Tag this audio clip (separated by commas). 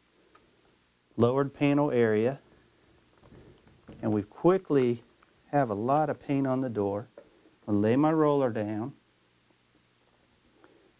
Speech